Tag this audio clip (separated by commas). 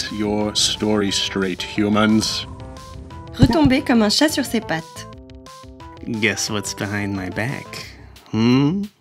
Music, Speech